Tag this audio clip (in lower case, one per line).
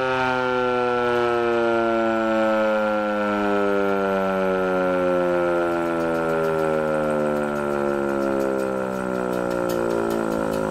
civil defense siren